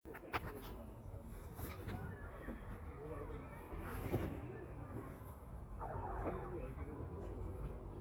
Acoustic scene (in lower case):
residential area